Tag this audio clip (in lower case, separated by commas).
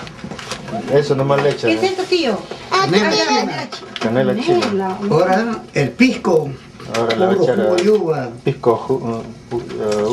speech